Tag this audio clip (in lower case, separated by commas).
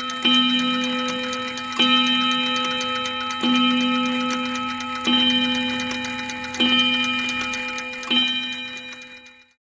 tick-tock